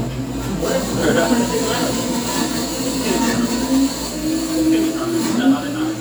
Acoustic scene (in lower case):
cafe